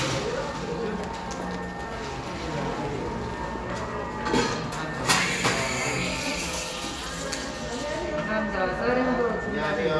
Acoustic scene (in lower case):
cafe